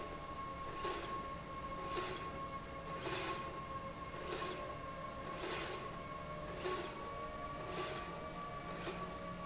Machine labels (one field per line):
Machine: slide rail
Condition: normal